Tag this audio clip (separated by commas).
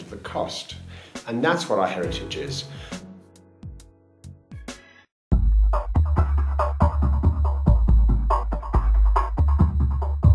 Speech, Music